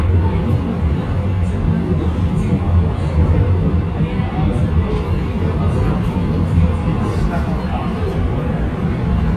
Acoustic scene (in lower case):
subway train